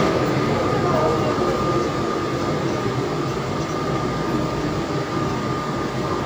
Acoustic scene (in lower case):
subway train